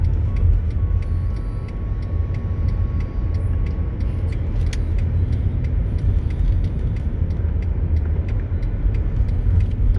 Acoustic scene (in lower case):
car